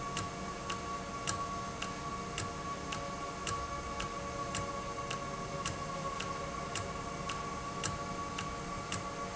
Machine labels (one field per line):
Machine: valve